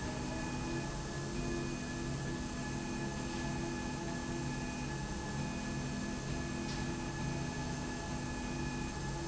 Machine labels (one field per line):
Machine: slide rail